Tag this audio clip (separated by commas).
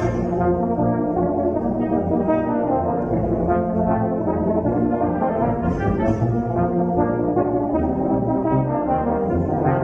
Brass instrument, Trumpet, Orchestra, Music, Musical instrument, inside a large room or hall